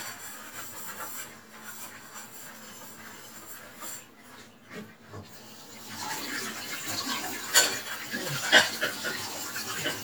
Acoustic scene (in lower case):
kitchen